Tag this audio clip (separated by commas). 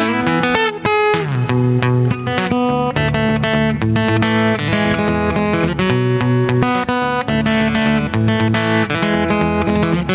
Musical instrument, Electric guitar, Guitar, Strum, Plucked string instrument, Music, Acoustic guitar